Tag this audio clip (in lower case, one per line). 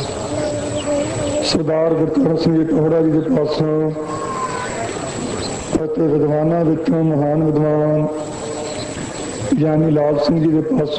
man speaking
speech
narration